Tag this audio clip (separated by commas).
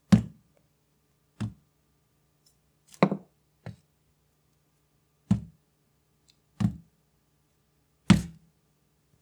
Thump